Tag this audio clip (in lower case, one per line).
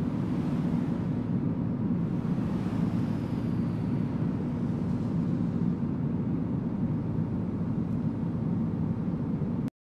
truck